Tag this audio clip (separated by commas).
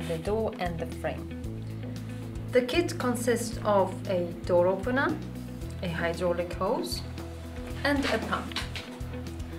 Speech, Music